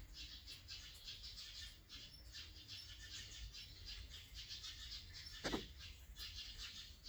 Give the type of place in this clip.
park